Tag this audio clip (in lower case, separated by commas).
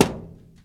thud